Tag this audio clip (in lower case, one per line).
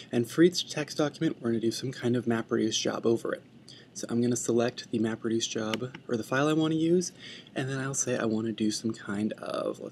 speech